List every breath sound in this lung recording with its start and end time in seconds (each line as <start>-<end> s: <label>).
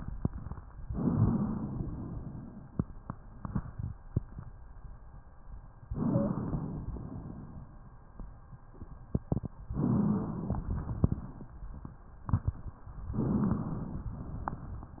0.90-1.84 s: inhalation
1.86-2.79 s: exhalation
5.92-6.89 s: inhalation
6.14-6.29 s: wheeze
6.90-7.89 s: exhalation
9.73-10.67 s: inhalation
10.69-12.04 s: exhalation
10.69-12.04 s: crackles
13.18-14.11 s: inhalation